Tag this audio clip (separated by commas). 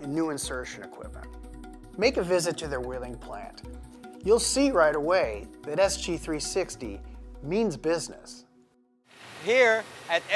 Speech, Music